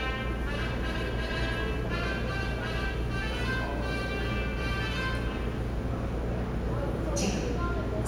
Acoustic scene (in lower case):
subway station